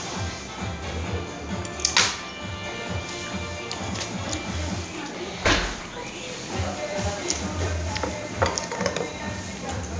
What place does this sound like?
restaurant